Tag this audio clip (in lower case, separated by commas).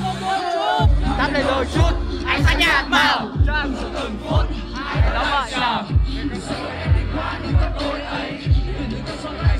music, speech